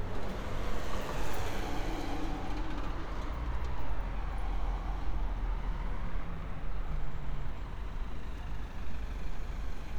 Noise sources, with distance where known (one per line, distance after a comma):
engine of unclear size